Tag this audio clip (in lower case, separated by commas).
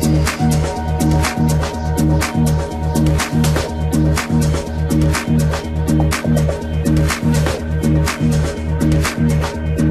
music, electronica